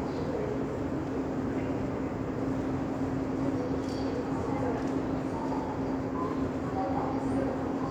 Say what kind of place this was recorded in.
subway station